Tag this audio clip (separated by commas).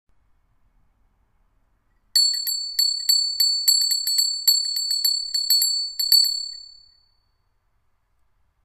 Bell